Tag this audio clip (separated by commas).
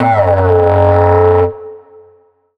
Music, Musical instrument